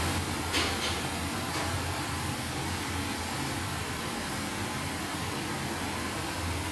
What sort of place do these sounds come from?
restaurant